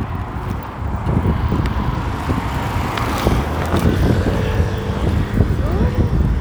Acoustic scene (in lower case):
street